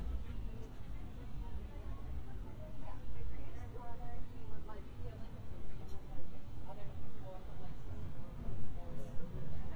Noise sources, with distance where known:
person or small group talking, far

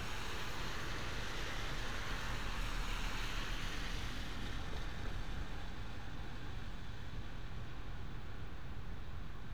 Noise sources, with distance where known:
background noise

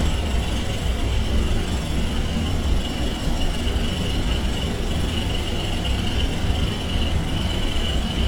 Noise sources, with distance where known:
jackhammer, near

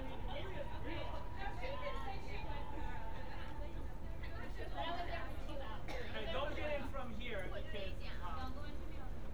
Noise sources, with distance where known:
person or small group talking

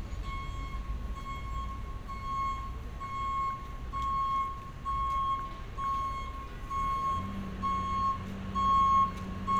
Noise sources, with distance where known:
engine of unclear size
reverse beeper, near

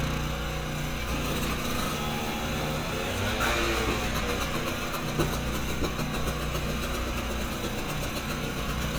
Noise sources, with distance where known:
medium-sounding engine, near

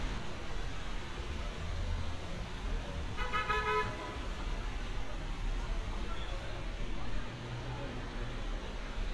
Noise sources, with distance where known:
car horn
person or small group shouting

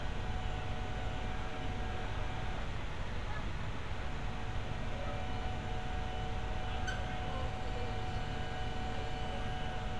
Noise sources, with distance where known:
unidentified human voice

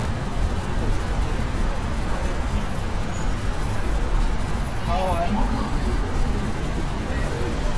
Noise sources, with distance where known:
person or small group talking

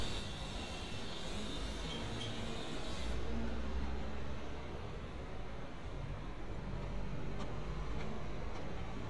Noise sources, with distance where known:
small or medium rotating saw

